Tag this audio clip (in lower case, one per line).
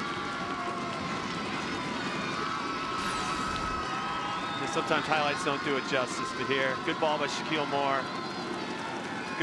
speech